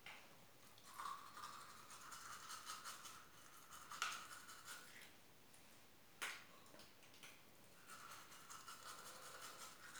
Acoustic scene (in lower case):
restroom